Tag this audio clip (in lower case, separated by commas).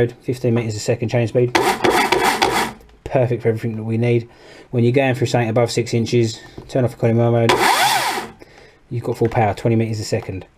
speech, chainsaw